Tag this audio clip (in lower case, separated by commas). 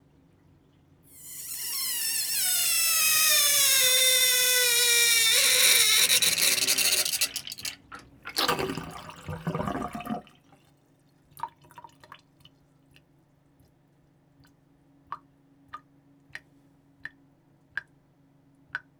domestic sounds, liquid, sink (filling or washing), drip